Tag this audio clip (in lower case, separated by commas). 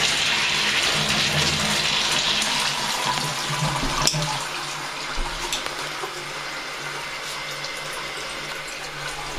toilet flushing, toilet flush, water